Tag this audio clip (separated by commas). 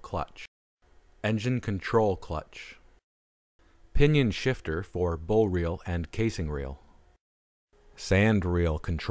Speech